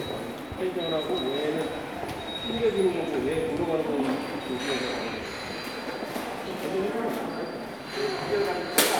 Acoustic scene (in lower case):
subway station